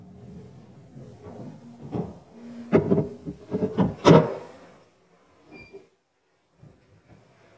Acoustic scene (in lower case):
elevator